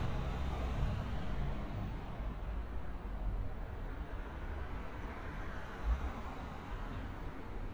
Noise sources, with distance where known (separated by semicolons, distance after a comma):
engine of unclear size